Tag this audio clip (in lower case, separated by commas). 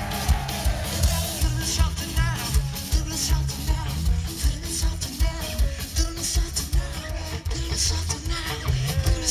music, whoop